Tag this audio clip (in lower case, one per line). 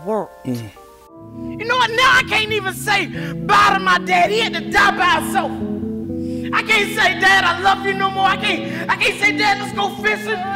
speech
music